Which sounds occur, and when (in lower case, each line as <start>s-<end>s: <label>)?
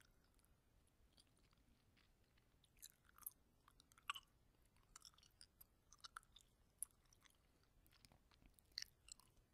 0.0s-0.4s: mastication
1.1s-1.6s: mastication
1.7s-1.8s: mastication
1.9s-2.1s: mastication
2.2s-2.5s: mastication
2.6s-3.3s: mastication
3.6s-4.3s: mastication
4.7s-5.5s: mastication
5.6s-5.6s: mastication
5.9s-6.5s: mastication
6.8s-7.4s: mastication
7.6s-7.7s: mastication
7.8s-8.2s: mastication
8.3s-8.6s: mastication
8.7s-8.9s: mastication
9.0s-9.3s: mastication